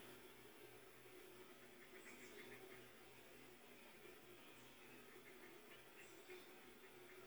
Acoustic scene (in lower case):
park